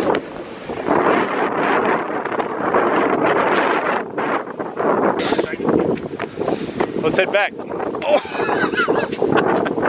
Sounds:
Wind noise (microphone), Speech

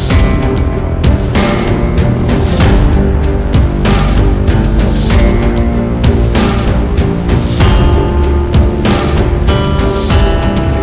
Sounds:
Music

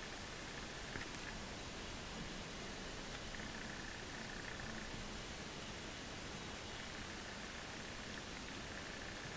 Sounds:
woodpecker pecking tree

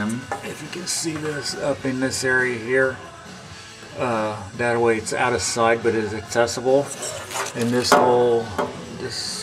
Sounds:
inside a small room, Speech, Music

